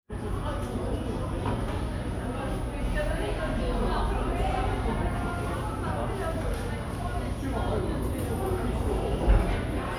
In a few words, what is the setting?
cafe